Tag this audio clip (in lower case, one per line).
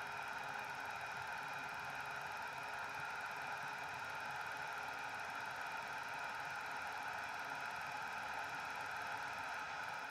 white noise